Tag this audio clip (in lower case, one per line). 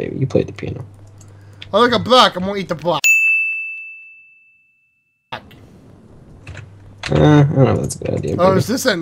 inside a large room or hall
speech